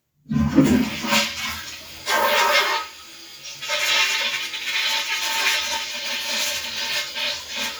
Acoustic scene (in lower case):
restroom